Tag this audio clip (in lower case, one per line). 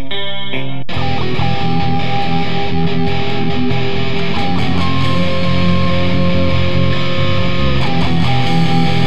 heavy metal
music